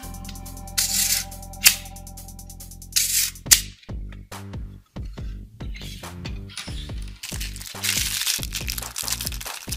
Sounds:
cap gun shooting

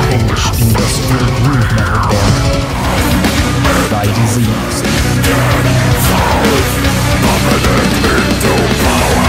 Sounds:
speech, music

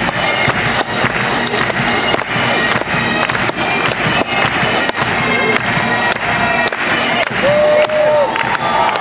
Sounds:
cheering, music

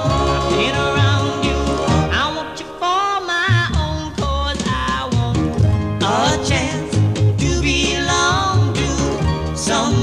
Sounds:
music, singing

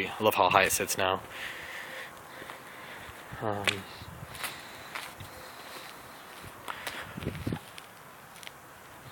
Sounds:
outside, rural or natural, footsteps, speech

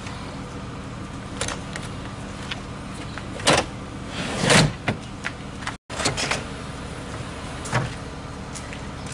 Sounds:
car, vehicle, motor vehicle (road)

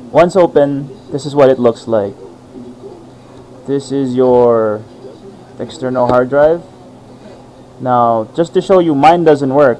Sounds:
speech

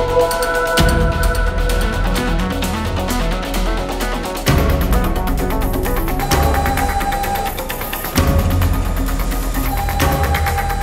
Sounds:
music

